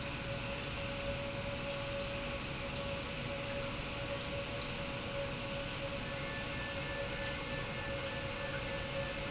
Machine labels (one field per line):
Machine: pump